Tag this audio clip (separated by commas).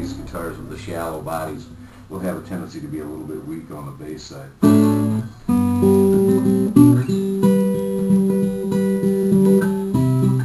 Guitar, Music, Strum, Plucked string instrument, Speech, Musical instrument